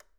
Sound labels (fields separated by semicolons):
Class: switch; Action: being turned on; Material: plastic